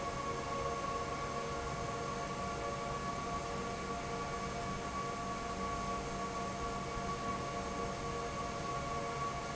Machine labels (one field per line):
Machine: fan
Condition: normal